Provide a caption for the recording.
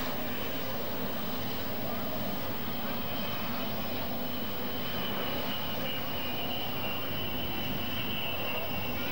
The noises from an aircraft runway or hangar with a moving craft in the distance